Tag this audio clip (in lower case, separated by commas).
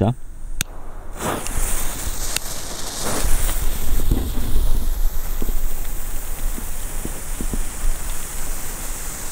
firecracker, speech